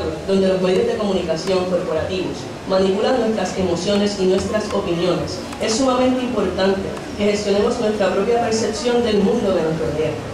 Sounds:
Speech

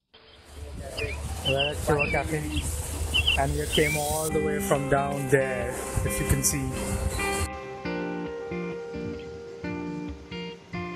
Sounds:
Speech, Music

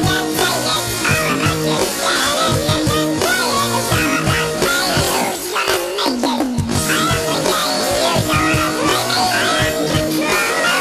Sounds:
Music

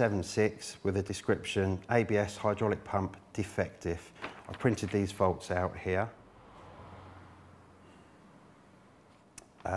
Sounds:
Speech

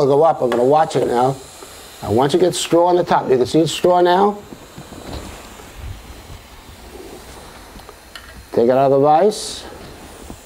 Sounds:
Speech, Tools

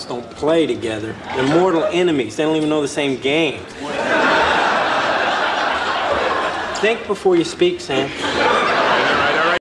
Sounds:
Speech

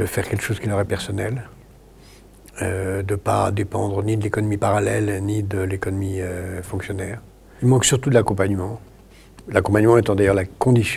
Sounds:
Speech

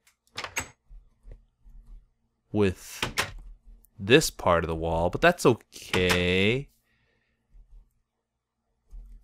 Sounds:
Speech

